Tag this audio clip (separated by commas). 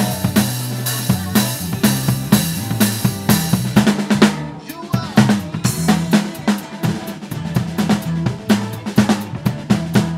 Bass drum, Music